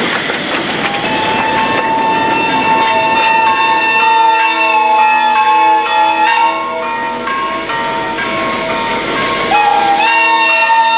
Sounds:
clickety-clack
rail transport
train
train horn
train wagon

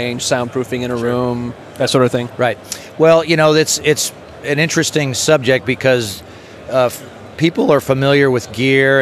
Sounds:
speech

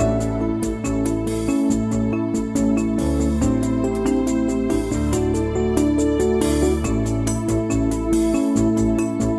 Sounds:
music

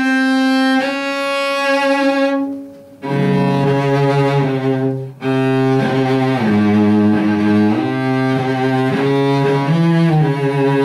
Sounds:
musical instrument
cello
music

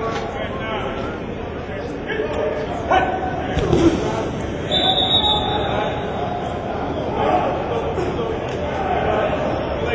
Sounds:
speech

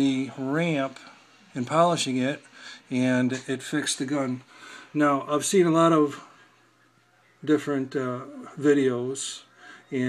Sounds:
speech

